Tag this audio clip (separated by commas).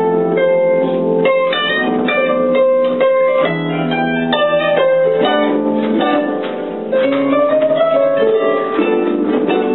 playing harp, Pizzicato, Harp